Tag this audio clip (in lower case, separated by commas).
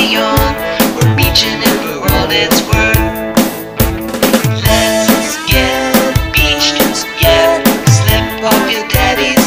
music